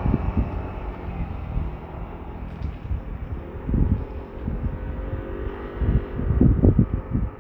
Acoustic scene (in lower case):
street